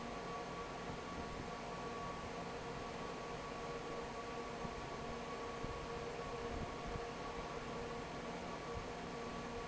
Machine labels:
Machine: fan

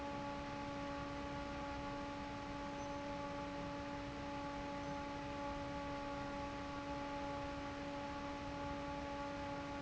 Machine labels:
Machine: fan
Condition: normal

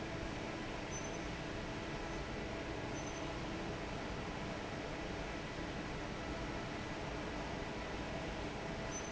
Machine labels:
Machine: fan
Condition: normal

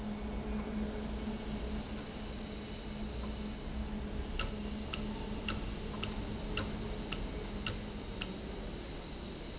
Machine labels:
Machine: valve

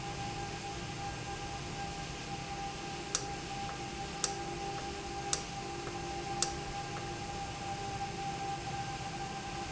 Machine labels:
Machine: valve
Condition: normal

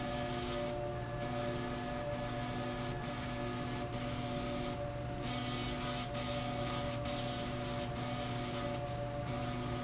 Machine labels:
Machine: slide rail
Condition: abnormal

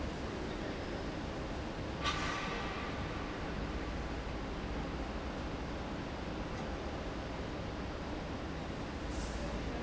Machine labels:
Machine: fan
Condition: abnormal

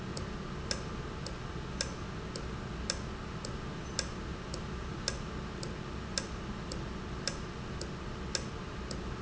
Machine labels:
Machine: valve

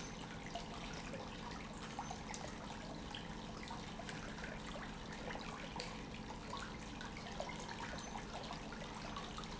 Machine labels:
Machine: pump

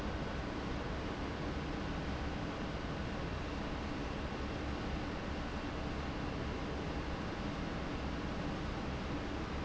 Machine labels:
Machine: fan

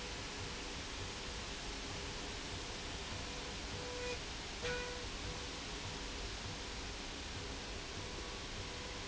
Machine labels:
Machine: slide rail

